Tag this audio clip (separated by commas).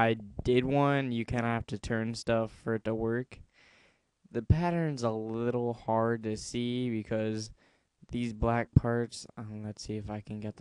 Speech